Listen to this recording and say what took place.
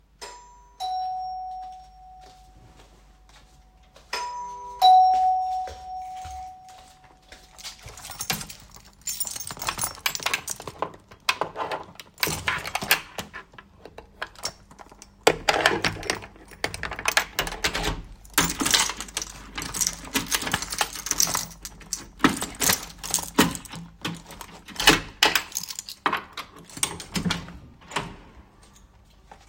My mom cameback home and rang into the doorbell. I walked to her, my clothes ruffling a tiny bit, I then proceeded to take the keychain out and open the door for her.